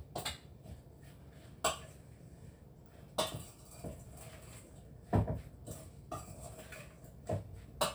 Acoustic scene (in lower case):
kitchen